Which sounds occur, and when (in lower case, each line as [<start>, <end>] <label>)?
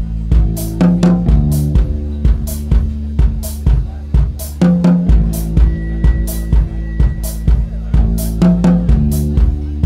[0.01, 9.85] music